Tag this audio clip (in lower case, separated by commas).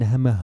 speech, human voice